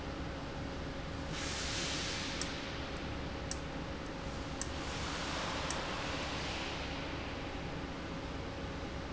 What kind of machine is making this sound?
valve